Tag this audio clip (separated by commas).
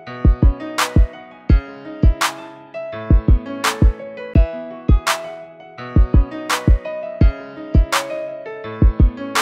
Music